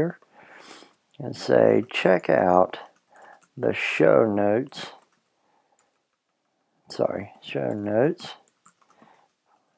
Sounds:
Speech

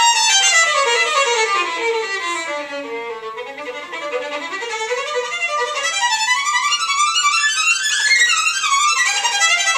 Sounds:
fiddle, Music, Musical instrument

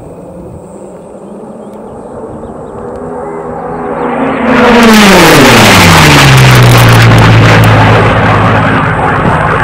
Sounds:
airplane flyby

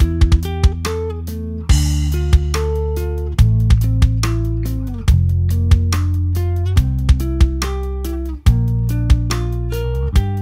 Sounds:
Music

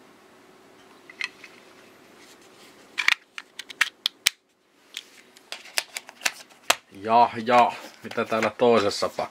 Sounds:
Speech

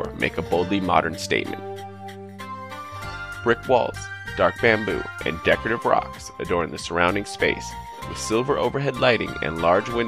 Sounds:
Speech, Music

